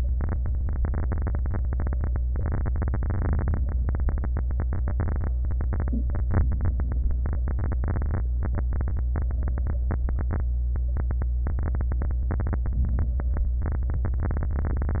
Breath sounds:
Inhalation: 6.46-7.23 s, 12.78-13.55 s

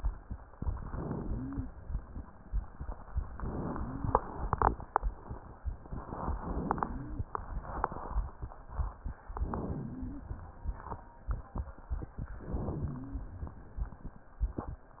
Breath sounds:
Inhalation: 0.57-1.67 s, 3.32-4.21 s, 5.98-6.87 s, 9.35-10.25 s, 12.41-13.30 s
Wheeze: 1.18-1.71 s, 3.70-4.23 s, 6.43-7.33 s, 9.53-10.30 s, 12.75-13.34 s

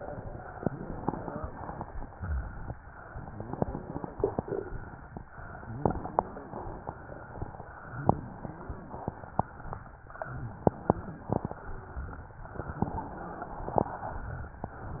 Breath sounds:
Wheeze: 1.10-1.52 s, 3.30-3.85 s

